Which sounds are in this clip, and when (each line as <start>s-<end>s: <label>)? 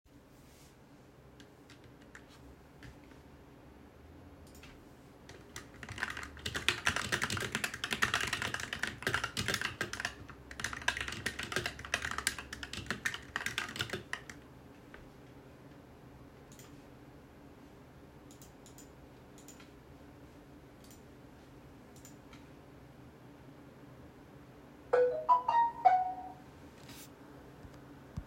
5.7s-14.5s: keyboard typing
24.9s-26.2s: phone ringing